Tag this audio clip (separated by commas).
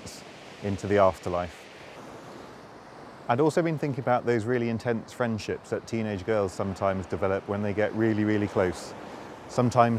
Speech